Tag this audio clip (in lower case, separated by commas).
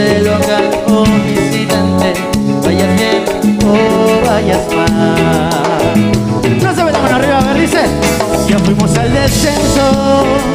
speech, music